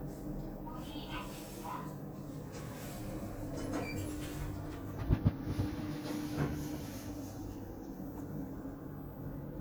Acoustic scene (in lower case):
elevator